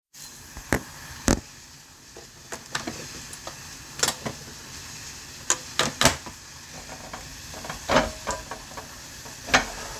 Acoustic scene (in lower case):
kitchen